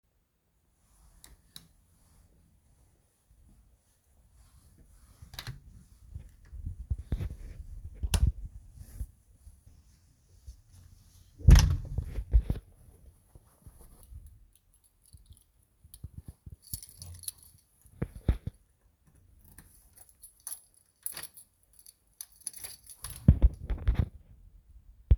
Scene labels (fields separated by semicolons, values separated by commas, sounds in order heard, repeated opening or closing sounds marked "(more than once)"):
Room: bedroom, hallway; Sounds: light switch, door (more than once), keys